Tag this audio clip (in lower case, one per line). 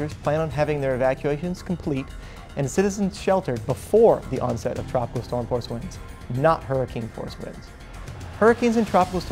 music
speech